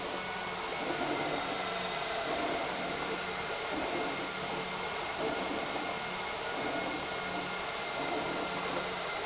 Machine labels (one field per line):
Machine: pump